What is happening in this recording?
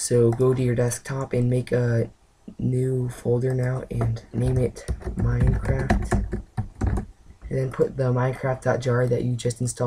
A man talks while a keyboard is typed and a mouse clicked